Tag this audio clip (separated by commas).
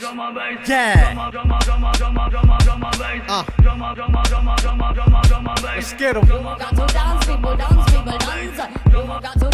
Hip hop music, Music